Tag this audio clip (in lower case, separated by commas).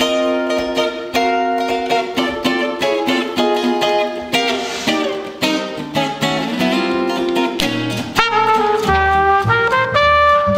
music, jazz, musical instrument